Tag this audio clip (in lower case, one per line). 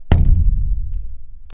musical instrument
music
drum
percussion
bass drum